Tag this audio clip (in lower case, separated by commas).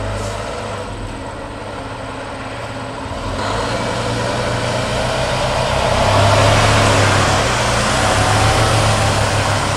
truck, revving, engine, heavy engine (low frequency), vehicle